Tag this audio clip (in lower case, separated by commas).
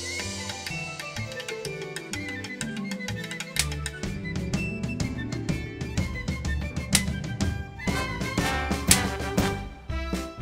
music